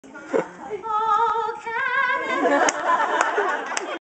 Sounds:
female singing

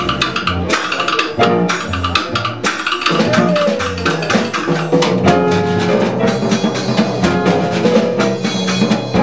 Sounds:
percussion, music, jazz, drum kit, musical instrument

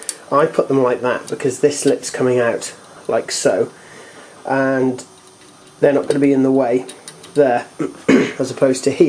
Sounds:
speech, inside a small room

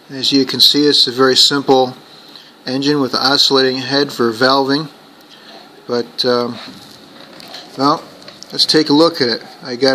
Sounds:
speech

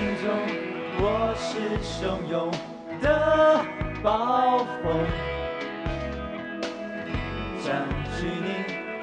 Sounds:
music, singing, inside a large room or hall

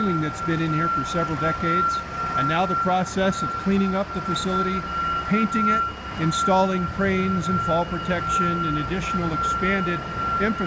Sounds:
speech, inside a large room or hall

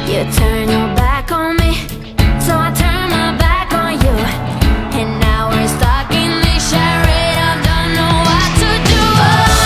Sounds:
music

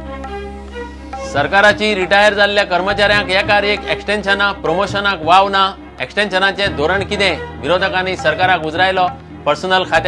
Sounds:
music, speech

